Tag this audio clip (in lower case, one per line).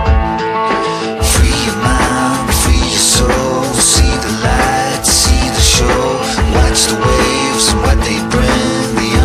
music